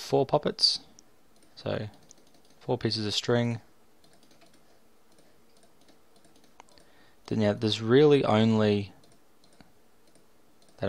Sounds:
speech

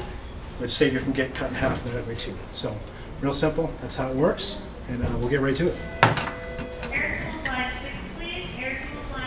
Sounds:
speech

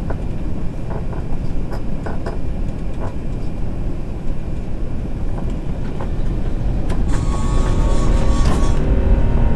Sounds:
vehicle

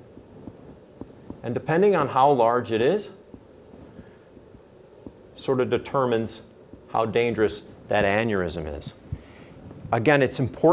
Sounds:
inside a small room, speech

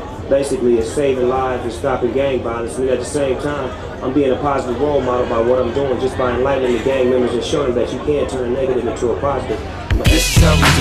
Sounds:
speech, music

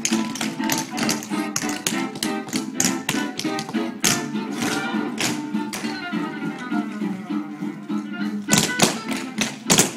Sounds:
tap dancing

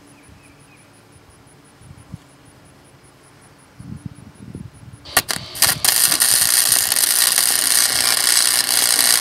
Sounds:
tools, outside, urban or man-made

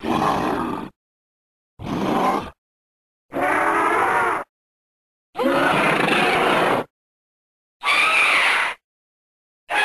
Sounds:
sound effect

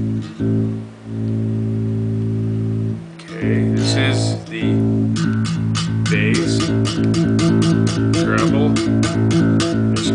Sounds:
speech, plucked string instrument, music, bass guitar, guitar, musical instrument

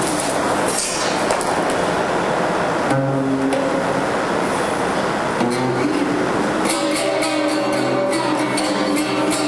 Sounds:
music, plucked string instrument, strum, guitar, musical instrument

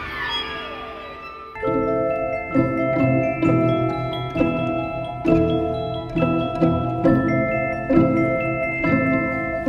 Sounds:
fiddle, orchestra, musical instrument, music

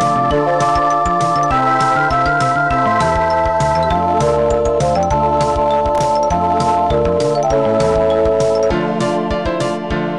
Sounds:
music

